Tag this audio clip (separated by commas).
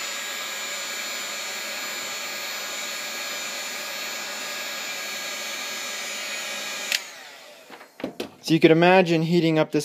Hair dryer